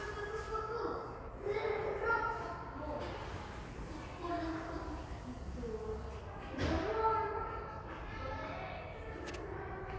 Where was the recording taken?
in a crowded indoor space